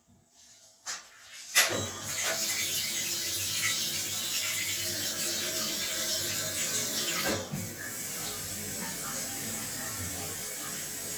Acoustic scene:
restroom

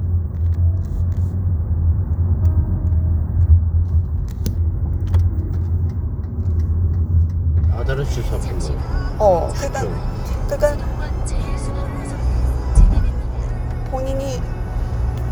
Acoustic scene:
car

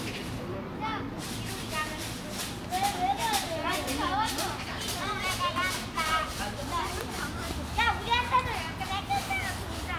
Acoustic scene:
park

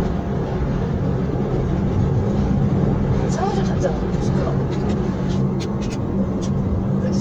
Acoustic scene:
car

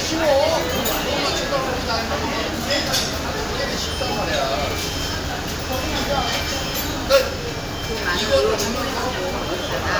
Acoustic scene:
crowded indoor space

